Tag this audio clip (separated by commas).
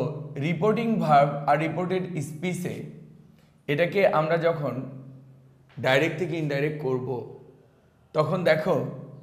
Speech, monologue